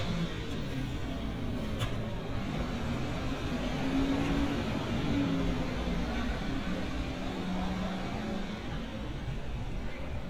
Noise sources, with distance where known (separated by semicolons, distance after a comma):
large-sounding engine